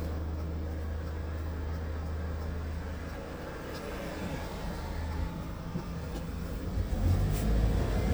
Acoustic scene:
car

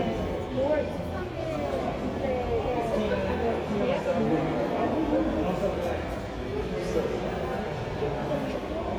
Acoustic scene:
crowded indoor space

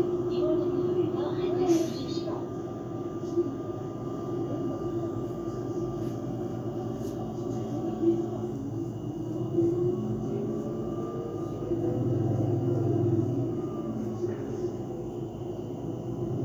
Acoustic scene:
bus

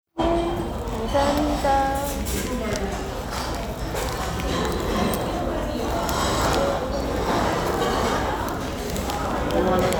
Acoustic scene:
restaurant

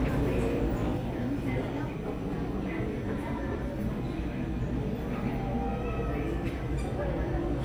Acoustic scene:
crowded indoor space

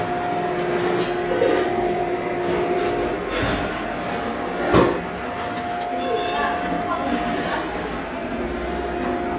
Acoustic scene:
cafe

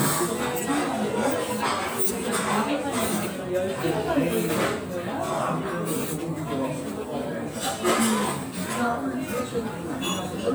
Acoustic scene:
restaurant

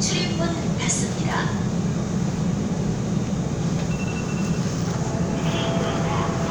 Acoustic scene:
subway train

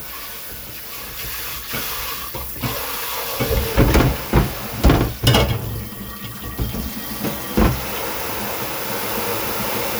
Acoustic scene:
kitchen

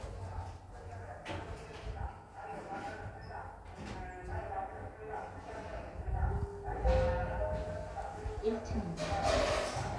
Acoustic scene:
elevator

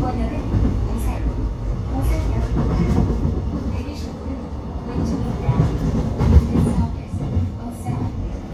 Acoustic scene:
subway train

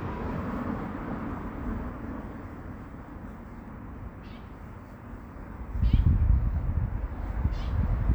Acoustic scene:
residential area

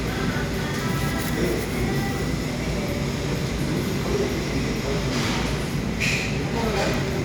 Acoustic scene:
cafe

